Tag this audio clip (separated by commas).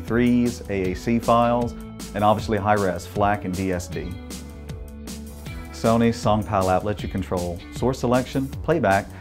Music, Speech